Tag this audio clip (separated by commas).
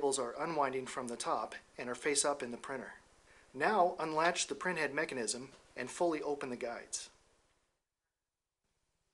Speech